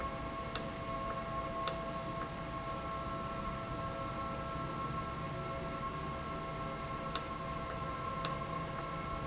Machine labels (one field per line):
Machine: valve